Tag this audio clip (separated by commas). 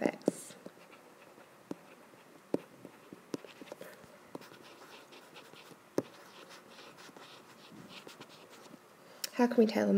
Writing, Speech